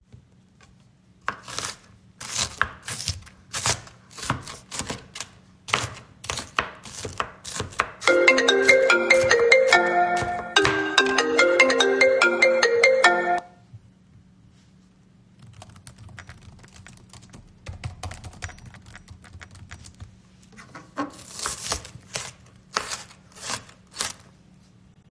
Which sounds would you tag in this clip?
bell ringing, phone ringing, keyboard typing